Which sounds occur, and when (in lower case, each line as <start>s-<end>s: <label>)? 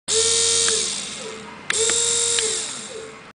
0.0s-3.2s: mechanisms
0.6s-0.6s: tick
1.7s-1.7s: tick
1.8s-1.9s: tick
2.3s-2.4s: tick